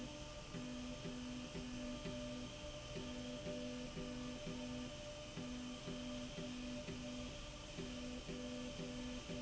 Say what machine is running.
slide rail